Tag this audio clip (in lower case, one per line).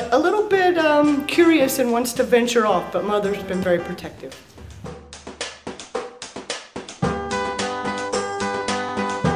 speech